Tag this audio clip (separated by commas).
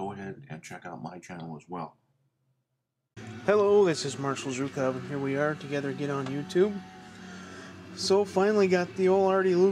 Music, Speech